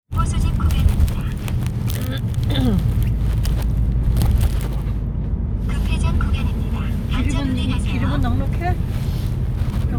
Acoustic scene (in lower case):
car